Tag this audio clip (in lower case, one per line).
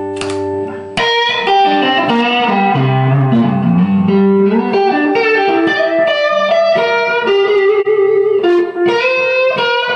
music